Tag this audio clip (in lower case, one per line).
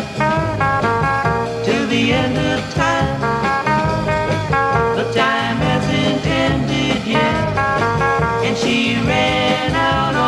music